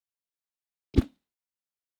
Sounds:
swoosh

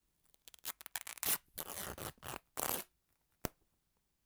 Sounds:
tearing

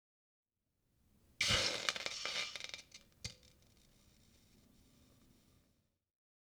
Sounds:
hiss

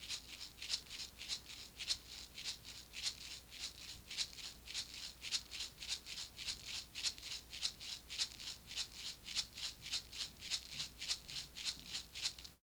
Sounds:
musical instrument
percussion
music
rattle (instrument)

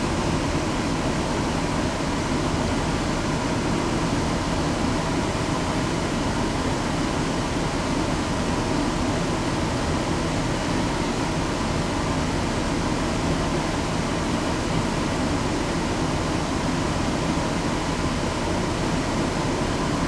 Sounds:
motor vehicle (road)
vehicle
bus

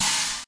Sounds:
crash cymbal
music
cymbal
musical instrument
percussion

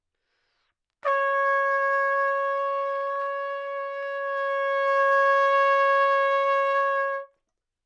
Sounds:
musical instrument
music
brass instrument
trumpet

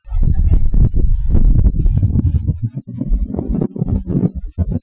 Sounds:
wind

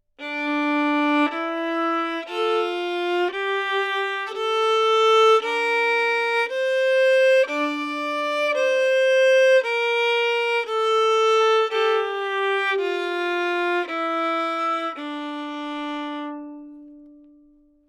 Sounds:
musical instrument
music
bowed string instrument

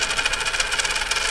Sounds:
coin (dropping)
domestic sounds

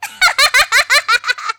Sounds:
human voice
laughter

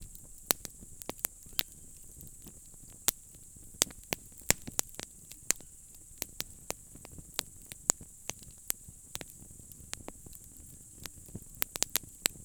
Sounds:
fire

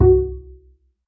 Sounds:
musical instrument
music
bowed string instrument

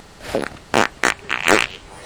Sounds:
fart

